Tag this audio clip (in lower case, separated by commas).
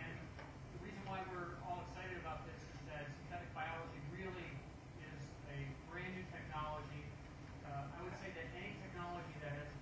speech